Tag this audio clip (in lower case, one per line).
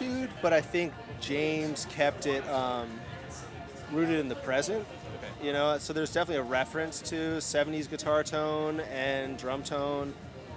speech
music